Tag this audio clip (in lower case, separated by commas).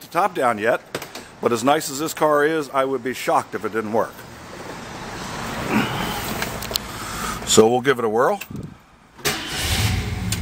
motor vehicle (road), speech, car, vehicle